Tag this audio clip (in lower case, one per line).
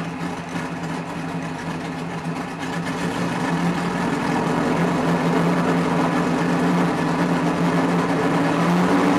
vehicle
car